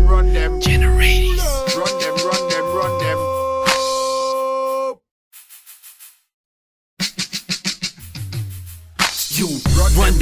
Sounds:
Music

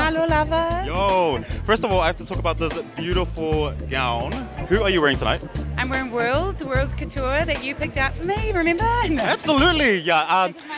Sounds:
Speech, Music

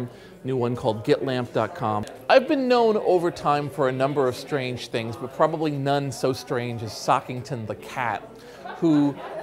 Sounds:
Speech

